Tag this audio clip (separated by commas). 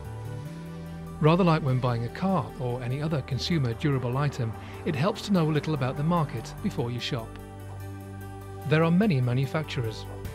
Speech, Music